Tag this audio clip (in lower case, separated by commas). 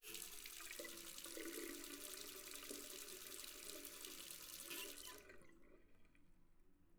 water tap, domestic sounds